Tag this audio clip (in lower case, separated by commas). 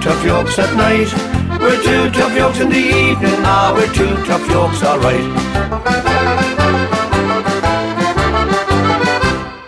accordion, music